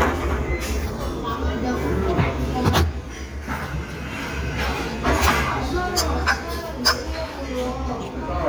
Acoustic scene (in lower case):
restaurant